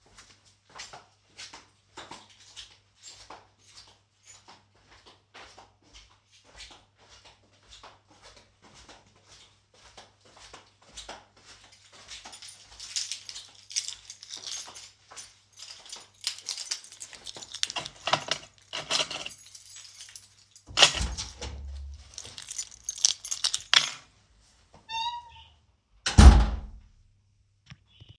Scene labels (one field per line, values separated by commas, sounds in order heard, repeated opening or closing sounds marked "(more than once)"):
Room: entrance hall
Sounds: footsteps, keys, door (more than once)